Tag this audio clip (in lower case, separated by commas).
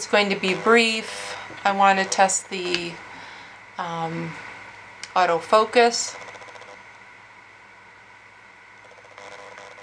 speech